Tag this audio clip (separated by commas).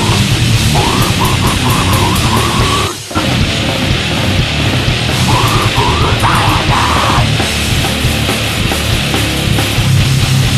Music